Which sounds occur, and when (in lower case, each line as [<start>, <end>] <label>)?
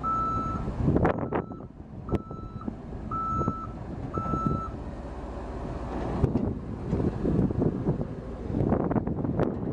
[0.00, 0.58] reversing beeps
[0.00, 9.72] truck
[0.00, 9.72] wind
[0.60, 1.64] wind noise (microphone)
[1.05, 1.68] reversing beeps
[1.96, 2.61] wind noise (microphone)
[2.06, 2.62] reversing beeps
[3.07, 3.66] reversing beeps
[3.33, 3.56] wind noise (microphone)
[3.96, 4.64] wind noise (microphone)
[4.09, 4.69] reversing beeps
[6.15, 6.57] wind noise (microphone)
[6.85, 8.02] wind noise (microphone)
[8.43, 9.72] wind noise (microphone)